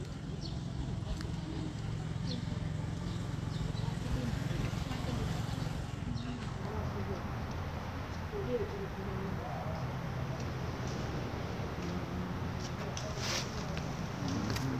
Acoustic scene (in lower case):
residential area